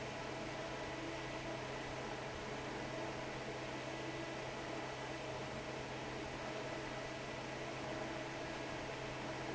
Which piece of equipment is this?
fan